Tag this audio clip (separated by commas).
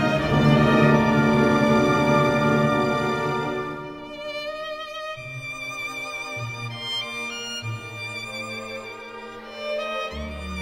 Musical instrument, Music